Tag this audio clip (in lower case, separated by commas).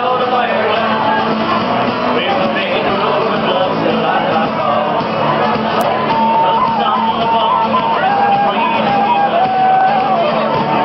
male singing, speech, music